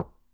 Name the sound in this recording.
glass object falling